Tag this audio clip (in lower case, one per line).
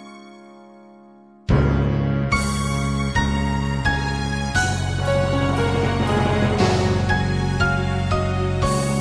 music